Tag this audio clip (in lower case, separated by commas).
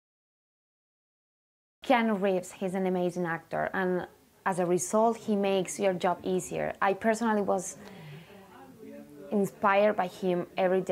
speech